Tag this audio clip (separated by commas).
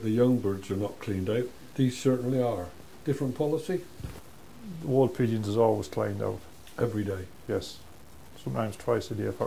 Speech